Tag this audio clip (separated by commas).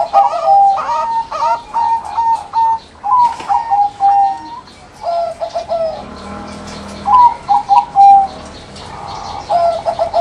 Animal, Coo, Bird